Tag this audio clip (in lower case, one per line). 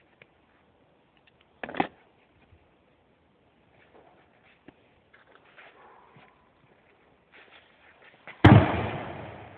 hammer